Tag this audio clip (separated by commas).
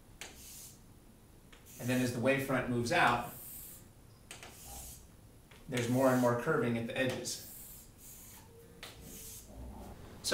Speech